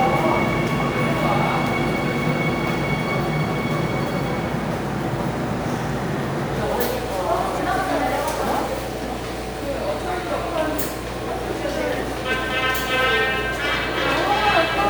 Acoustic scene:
subway station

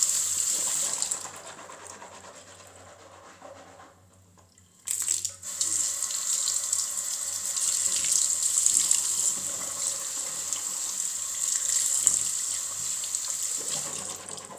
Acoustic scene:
restroom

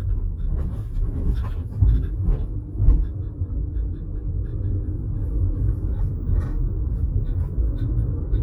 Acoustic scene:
car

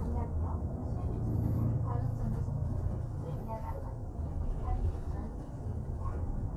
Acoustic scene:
bus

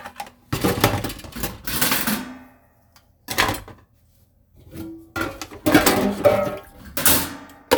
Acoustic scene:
kitchen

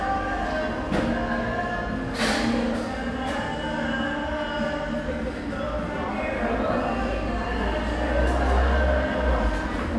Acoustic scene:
cafe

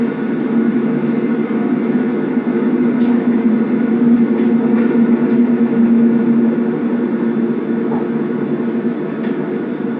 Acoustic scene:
subway train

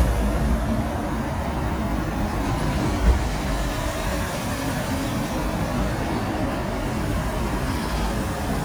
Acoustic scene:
street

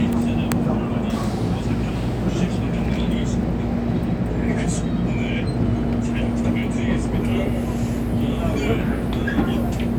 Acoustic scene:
subway train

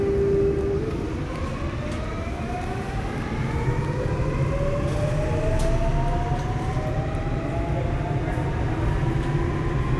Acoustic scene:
subway train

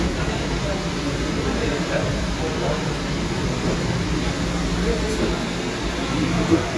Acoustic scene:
cafe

